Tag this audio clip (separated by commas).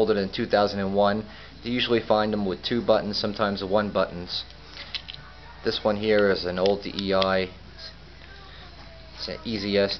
Music, inside a small room, Speech